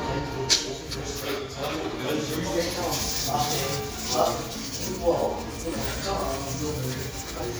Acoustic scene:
restaurant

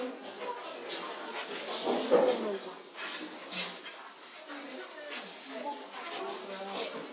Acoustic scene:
kitchen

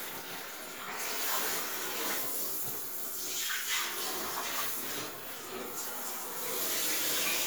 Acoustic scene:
restroom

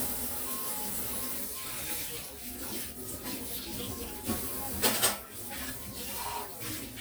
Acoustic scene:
kitchen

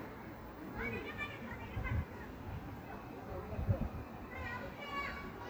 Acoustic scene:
park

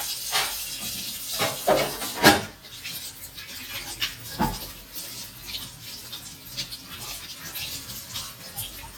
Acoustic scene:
kitchen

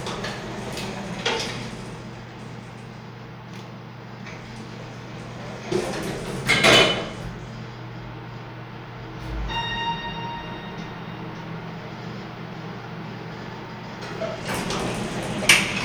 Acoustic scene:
elevator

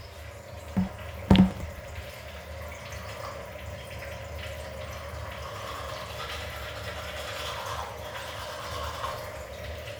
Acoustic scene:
restroom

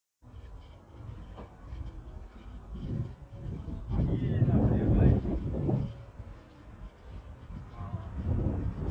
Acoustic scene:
residential area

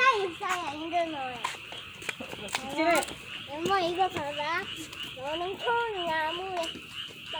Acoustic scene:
park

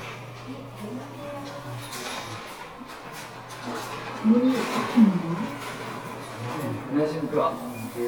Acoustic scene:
elevator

